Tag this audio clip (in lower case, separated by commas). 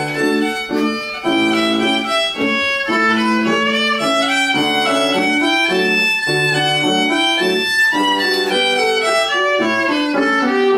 violin, music, musical instrument